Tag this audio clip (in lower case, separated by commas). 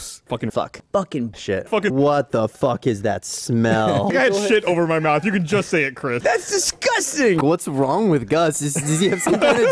speech